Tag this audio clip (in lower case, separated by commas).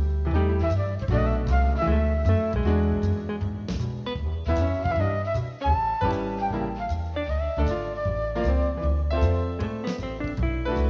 music